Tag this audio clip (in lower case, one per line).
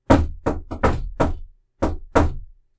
home sounds
wood
knock
door